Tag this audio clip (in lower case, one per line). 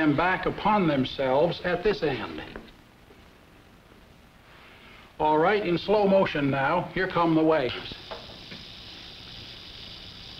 speech